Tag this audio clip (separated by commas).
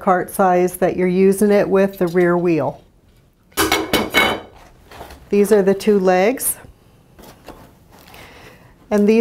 Speech